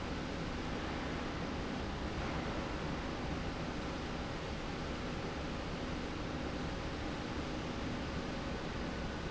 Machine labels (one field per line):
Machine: slide rail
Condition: normal